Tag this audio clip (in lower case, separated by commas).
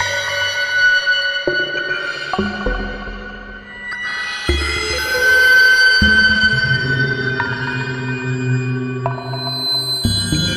music, scary music